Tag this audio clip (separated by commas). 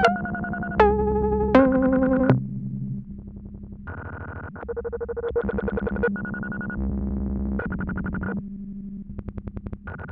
Keyboard (musical), Synthesizer, Music, Musical instrument, playing synthesizer